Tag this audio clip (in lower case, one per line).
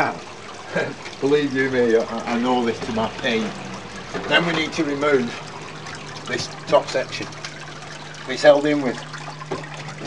water